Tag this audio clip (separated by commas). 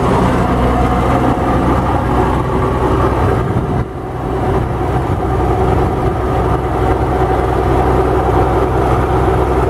Truck, Vehicle